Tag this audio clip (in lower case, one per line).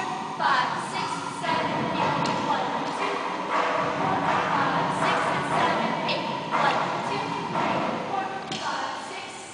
speech